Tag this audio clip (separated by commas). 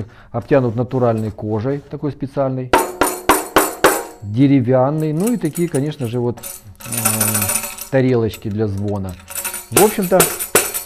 playing tambourine